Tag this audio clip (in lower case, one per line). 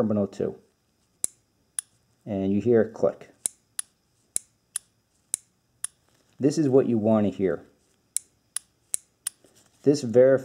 speech